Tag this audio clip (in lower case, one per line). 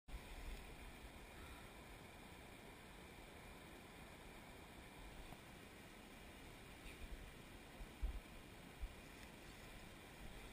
rimshot
snare drum
percussion
bass drum
drum kit
drum